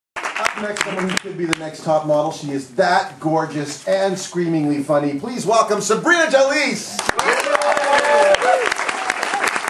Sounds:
speech
shout

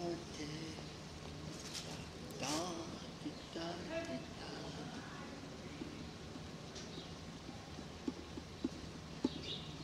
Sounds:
percussion
speech
music

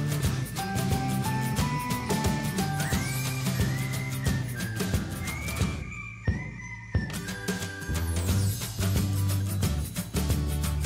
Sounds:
music

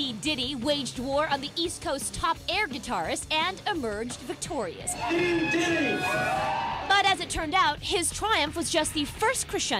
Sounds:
speech

